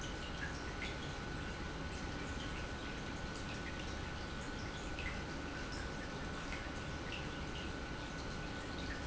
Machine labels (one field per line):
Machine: pump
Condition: normal